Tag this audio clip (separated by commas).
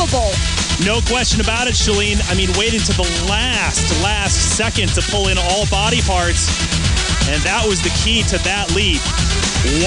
Speech, Music